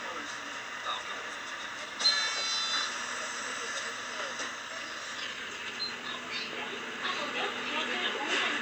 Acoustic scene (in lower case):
bus